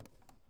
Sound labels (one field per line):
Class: drawer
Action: opening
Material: wooden